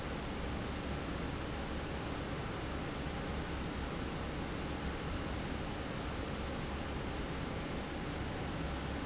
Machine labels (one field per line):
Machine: fan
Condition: normal